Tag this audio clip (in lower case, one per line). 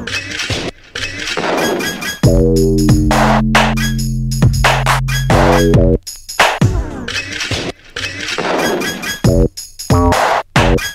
music